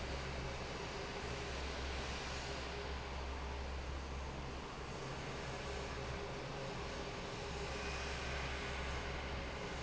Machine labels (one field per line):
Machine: fan